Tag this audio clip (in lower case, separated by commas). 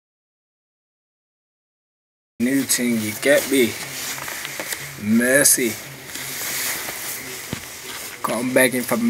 silence, speech, inside a small room